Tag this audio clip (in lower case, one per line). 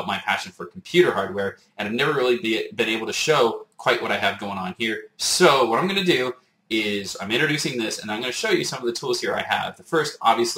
speech